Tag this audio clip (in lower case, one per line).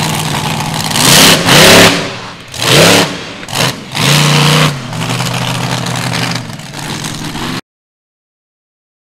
vehicle
truck